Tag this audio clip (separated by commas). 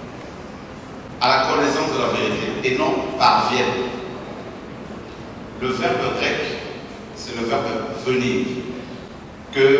Speech, man speaking